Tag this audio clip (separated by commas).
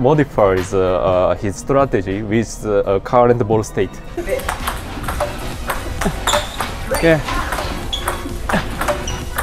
playing table tennis